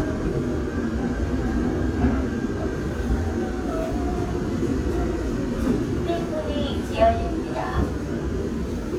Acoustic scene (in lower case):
subway train